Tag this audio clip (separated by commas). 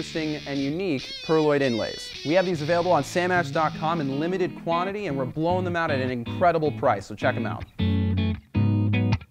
Speech, Musical instrument, Guitar, Plucked string instrument, Electric guitar, Music